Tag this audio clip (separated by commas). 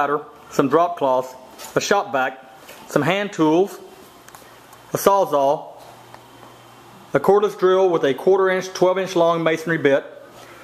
Speech